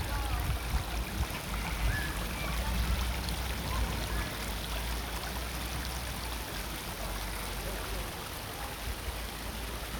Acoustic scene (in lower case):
park